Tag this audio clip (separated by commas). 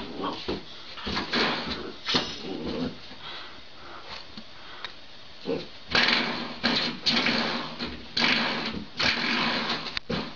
Dog, pets, Bow-wow, Animal